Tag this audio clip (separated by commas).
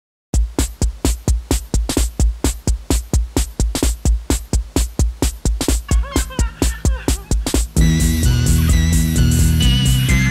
Music